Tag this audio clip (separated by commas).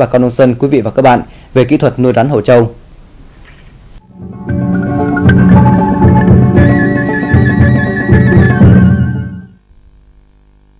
man speaking, Speech, Music